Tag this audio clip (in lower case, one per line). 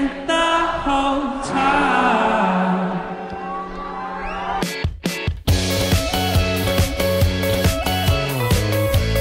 music